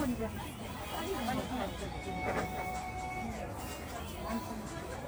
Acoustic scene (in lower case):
crowded indoor space